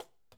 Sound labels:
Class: object falling